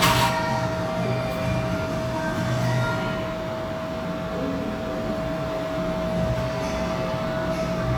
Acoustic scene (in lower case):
cafe